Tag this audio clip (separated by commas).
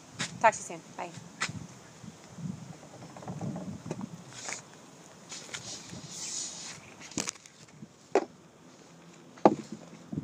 Speech